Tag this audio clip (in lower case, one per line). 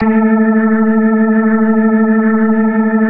keyboard (musical)
musical instrument
organ
music